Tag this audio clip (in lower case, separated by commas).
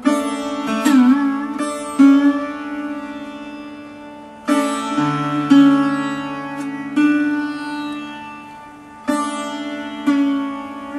traditional music, music, musical instrument, guitar